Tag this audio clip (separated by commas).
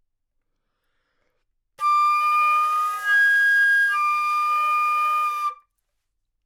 Music, Musical instrument, woodwind instrument